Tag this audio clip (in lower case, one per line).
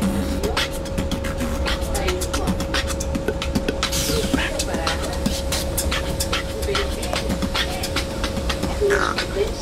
speech